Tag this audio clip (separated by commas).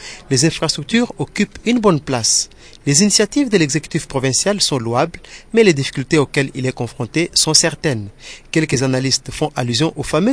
Speech